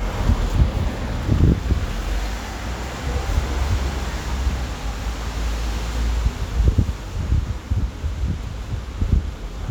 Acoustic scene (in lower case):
street